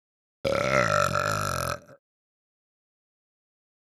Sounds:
burping

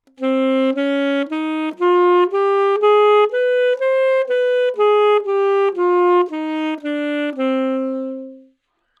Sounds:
music, musical instrument, woodwind instrument

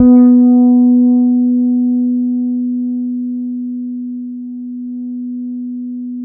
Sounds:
guitar, musical instrument, music, bass guitar, plucked string instrument

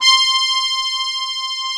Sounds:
music, musical instrument, accordion

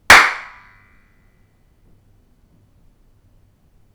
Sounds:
clapping, hands

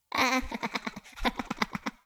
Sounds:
laughter, human voice

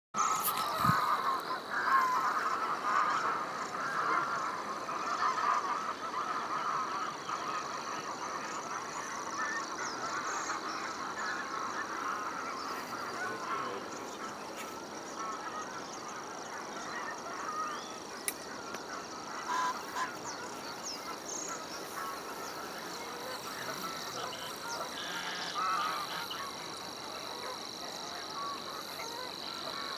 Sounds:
animal, bird, wild animals, bird song

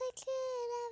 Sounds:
human voice, singing

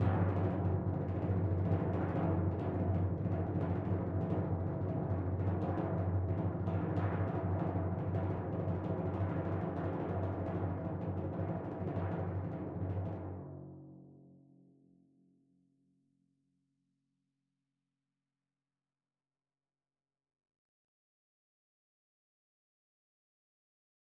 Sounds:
drum, music, percussion, musical instrument

